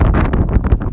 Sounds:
wind

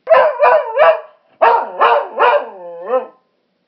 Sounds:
animal, domestic animals, dog, bark

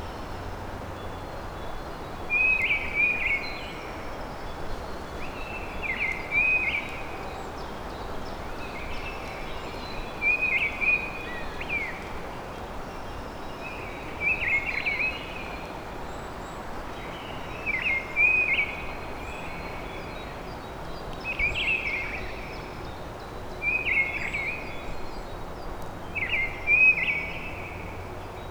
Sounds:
bird, bird vocalization, wild animals, animal

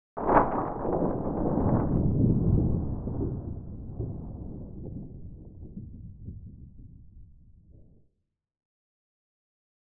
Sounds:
thunderstorm, thunder

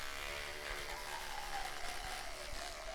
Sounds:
domestic sounds

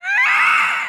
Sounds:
human voice, screaming

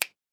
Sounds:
hands, finger snapping

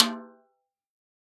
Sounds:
music, musical instrument, percussion, drum, snare drum

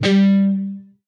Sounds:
music, plucked string instrument, guitar, musical instrument

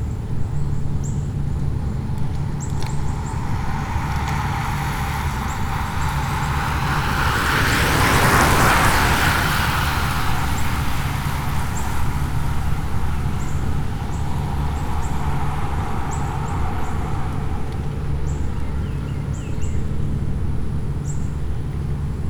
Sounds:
bicycle, vehicle

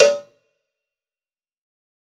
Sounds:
cowbell, bell

